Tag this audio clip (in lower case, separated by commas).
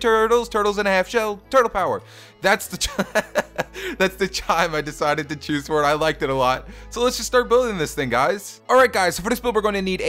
speech, music